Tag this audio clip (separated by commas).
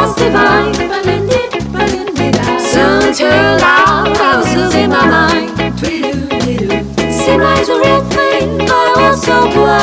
Music